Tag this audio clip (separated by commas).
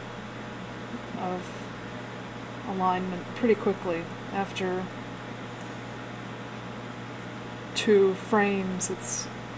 Speech